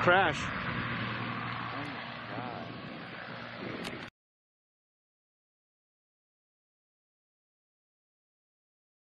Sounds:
speech

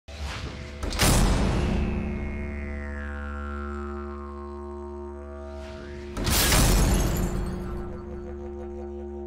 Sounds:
didgeridoo, music

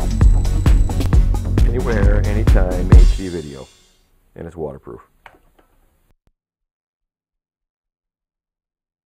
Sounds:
music, speech

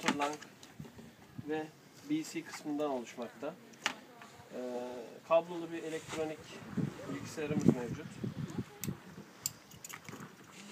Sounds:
speech

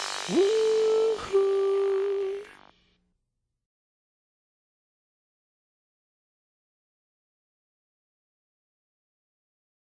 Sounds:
music, soundtrack music

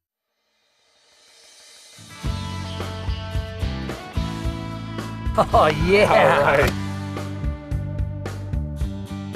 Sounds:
speech, music

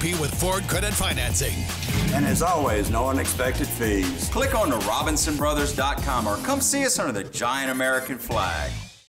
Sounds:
speech, music

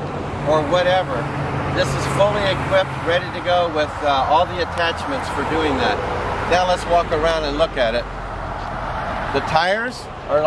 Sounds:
vehicle, car, speech

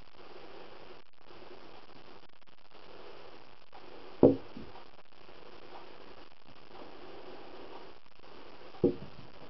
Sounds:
squish

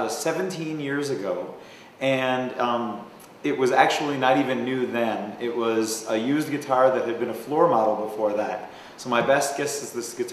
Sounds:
speech

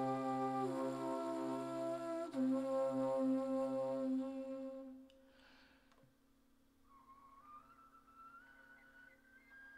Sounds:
music

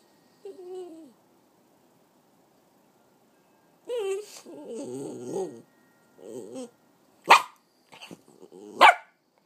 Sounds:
bark, bow-wow, whimper (dog), inside a small room, pets, dog, animal

